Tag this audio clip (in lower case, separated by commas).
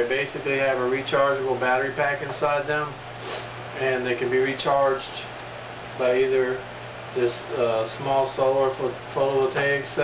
wind noise (microphone), speech